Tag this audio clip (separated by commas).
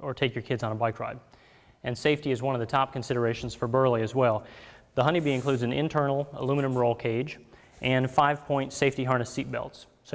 Speech